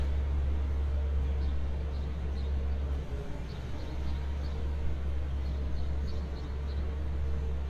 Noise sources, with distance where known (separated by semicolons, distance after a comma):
engine of unclear size